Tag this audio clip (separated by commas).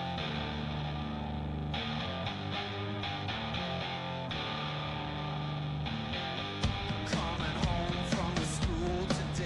Music